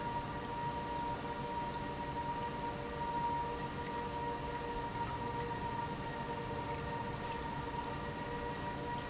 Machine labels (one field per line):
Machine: pump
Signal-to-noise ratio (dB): -6 dB